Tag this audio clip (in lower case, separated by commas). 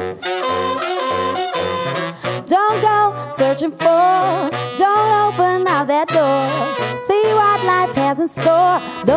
music